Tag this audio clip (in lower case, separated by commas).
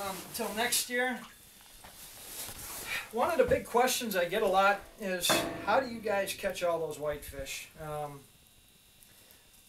speech